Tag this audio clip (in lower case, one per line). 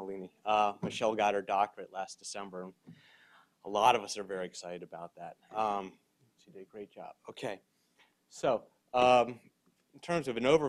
speech